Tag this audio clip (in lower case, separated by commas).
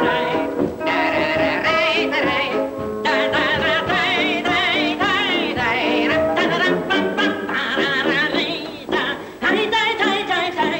yodeling, music